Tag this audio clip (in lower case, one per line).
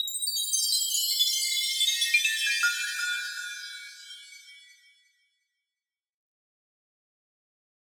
chime
bell